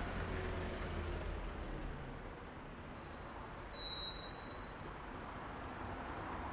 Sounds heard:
bus
car wheels rolling
bus compressor
bus brakes
bus engine idling
car

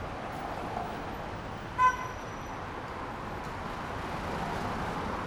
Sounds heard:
car engine accelerating
unclassified sound
car
car wheels rolling

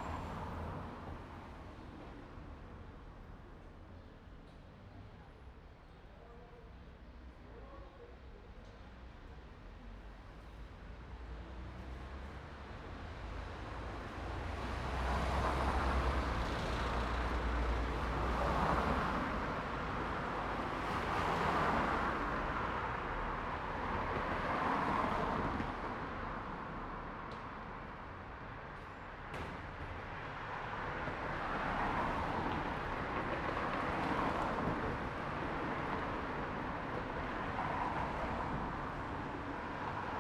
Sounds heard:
car wheels rolling
people talking
car
car engine accelerating

